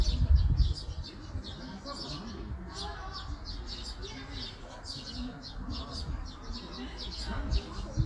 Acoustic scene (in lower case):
park